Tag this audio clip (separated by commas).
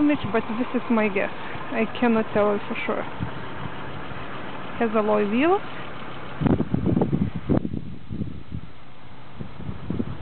Speech